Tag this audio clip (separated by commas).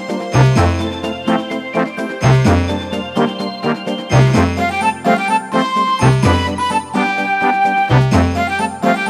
Music, Theme music